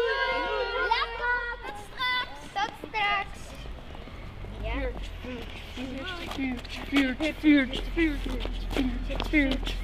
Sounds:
Speech

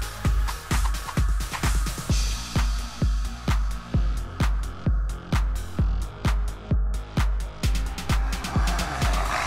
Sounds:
Disco, Music

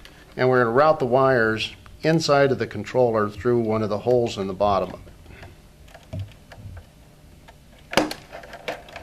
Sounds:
Speech

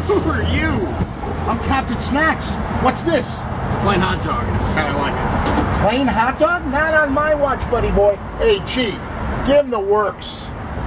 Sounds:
Speech

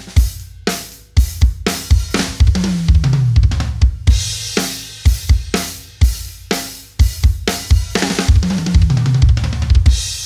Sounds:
playing bass drum

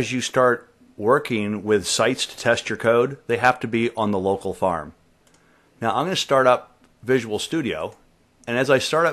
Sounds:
Speech

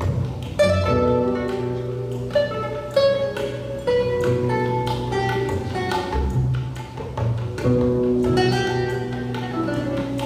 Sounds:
Musical instrument

